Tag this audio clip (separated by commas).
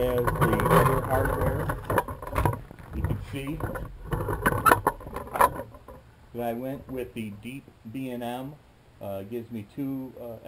inside a small room, Speech